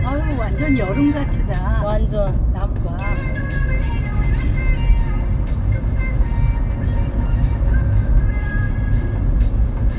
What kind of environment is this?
car